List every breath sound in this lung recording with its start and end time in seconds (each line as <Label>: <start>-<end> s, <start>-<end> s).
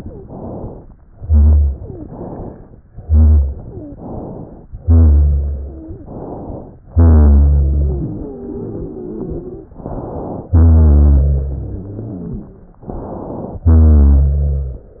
Inhalation: 0.17-0.93 s, 2.03-2.79 s, 3.91-4.67 s, 6.05-6.81 s, 9.77-10.51 s, 12.85-13.66 s
Exhalation: 1.18-2.01 s, 2.98-3.87 s, 4.74-5.83 s, 6.91-8.06 s, 10.53-11.87 s, 13.66-15.00 s
Wheeze: 1.75-2.09 s, 3.64-3.99 s, 5.60-6.09 s, 7.53-9.75 s, 11.55-12.80 s
Rhonchi: 1.16-1.75 s, 4.78-5.86 s, 6.91-8.06 s, 10.53-11.87 s, 13.66-14.94 s